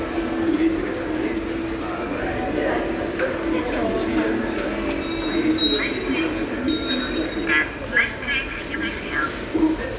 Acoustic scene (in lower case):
subway station